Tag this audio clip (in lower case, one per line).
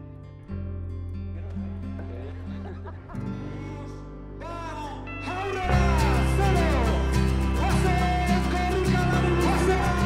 music
speech